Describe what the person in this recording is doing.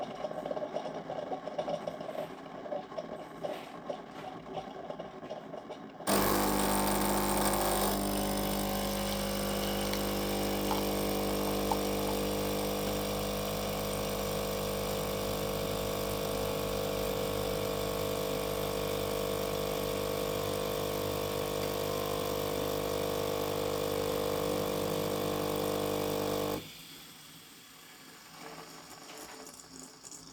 letting the coffe machine produce one coffee